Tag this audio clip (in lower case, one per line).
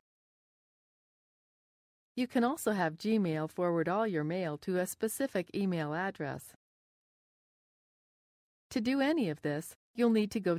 speech